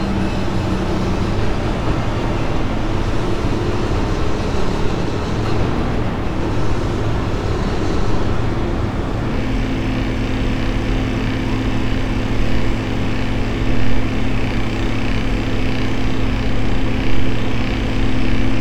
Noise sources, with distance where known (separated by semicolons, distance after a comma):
engine of unclear size